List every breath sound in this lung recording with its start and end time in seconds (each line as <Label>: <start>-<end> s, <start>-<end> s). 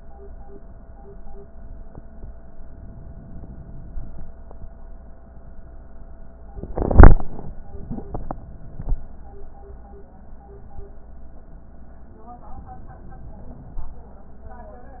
Inhalation: 2.70-4.28 s, 12.48-14.06 s